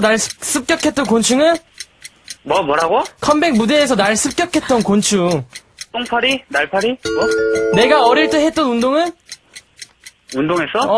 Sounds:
music, radio, speech

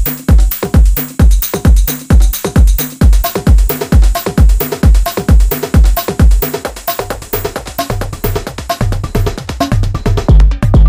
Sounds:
techno, drum kit, music

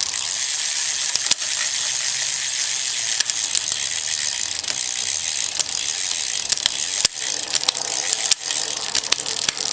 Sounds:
bicycle

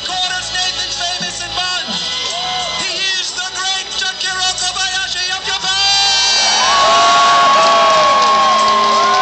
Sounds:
music, speech

